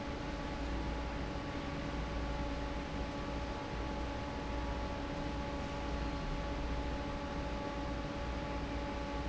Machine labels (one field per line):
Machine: fan